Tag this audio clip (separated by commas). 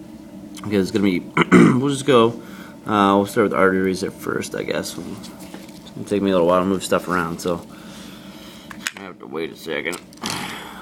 Speech